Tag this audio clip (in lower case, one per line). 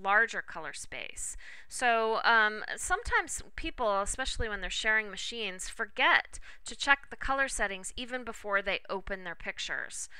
speech